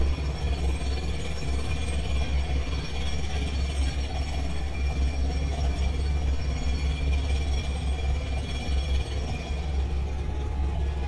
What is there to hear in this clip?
jackhammer, car horn